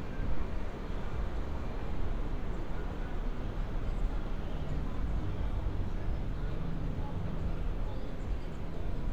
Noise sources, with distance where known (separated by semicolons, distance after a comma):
person or small group talking, far